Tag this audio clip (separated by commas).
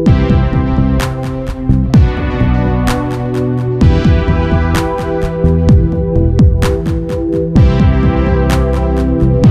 Music